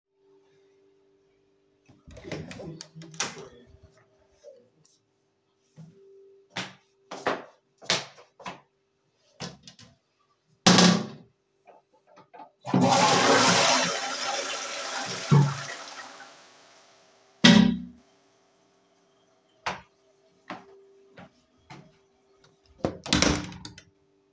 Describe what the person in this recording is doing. I opened the door,switched the light,flushed the toilet and close the door